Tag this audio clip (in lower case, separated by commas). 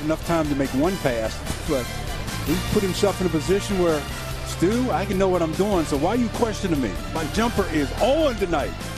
speech, music